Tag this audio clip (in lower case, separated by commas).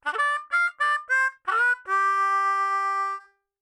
musical instrument, harmonica, music